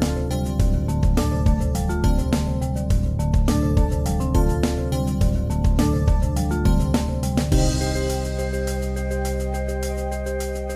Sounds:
Music

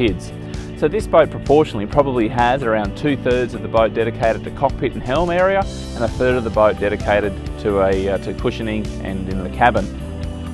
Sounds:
Speech, Music

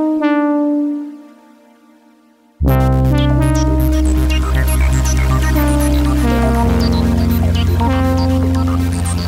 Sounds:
Keyboard (musical), Music, Synthesizer, Piano, Musical instrument

